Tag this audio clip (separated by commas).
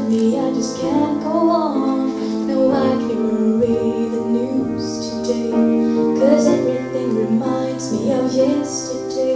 Music, Female singing